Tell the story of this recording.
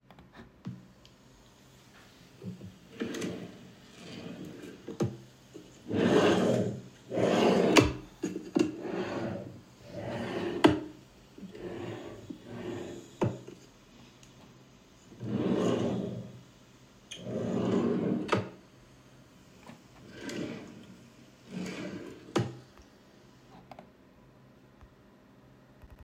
I opened and closed the wardrobe drawer a few times. The sound of the drawer sliding open and closed was recorded in the bedroom without any background noise.